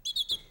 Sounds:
bird, bird call, animal, wild animals, chirp

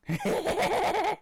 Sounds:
human voice, laughter

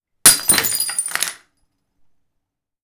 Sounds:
shatter, glass

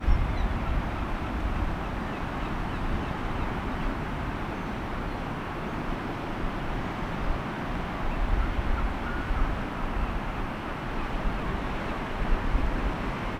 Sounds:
animal, wild animals, bird, gull, ocean, water

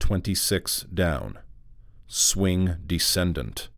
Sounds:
speech, human voice, man speaking

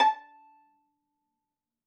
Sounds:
musical instrument, bowed string instrument, music

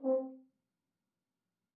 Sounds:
brass instrument, music, musical instrument

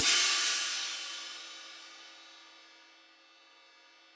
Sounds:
hi-hat, musical instrument, music, cymbal, percussion

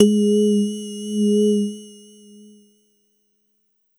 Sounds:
musical instrument, music, keyboard (musical)

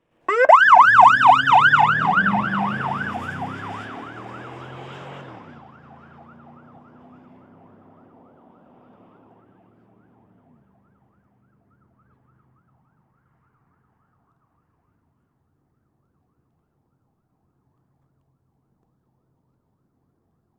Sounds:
motor vehicle (road), alarm, siren, vehicle

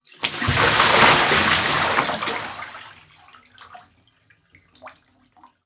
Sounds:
domestic sounds, splash, bathtub (filling or washing), liquid

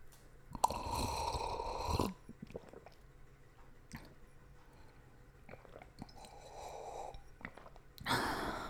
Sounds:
liquid

